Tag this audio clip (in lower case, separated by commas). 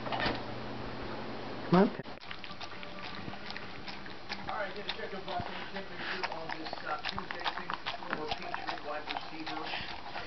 speech, pets, animal, dog